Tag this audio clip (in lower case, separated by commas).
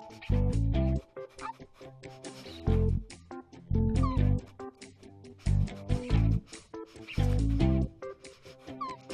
animal, dog, pets, music